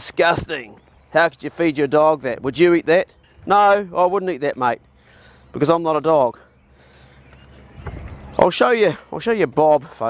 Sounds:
speech

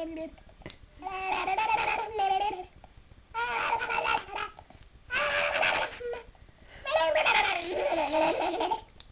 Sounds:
people babbling
babbling

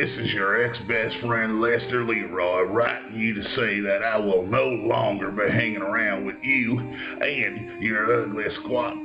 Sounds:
music
speech

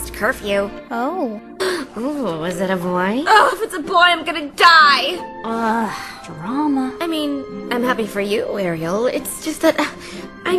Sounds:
music
background music
speech

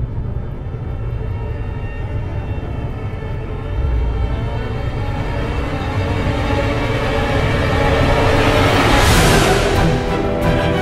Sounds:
scary music
music

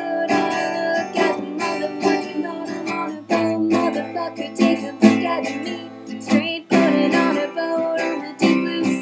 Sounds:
music

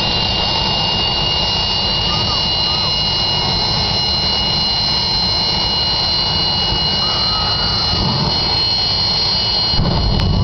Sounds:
vehicle

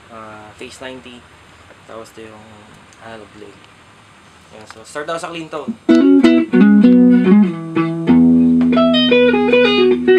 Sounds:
guitar
speech
music
musical instrument

